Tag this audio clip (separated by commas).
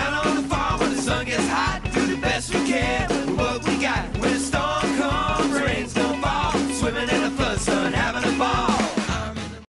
Music